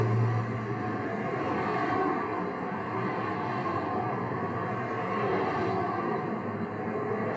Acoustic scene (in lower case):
street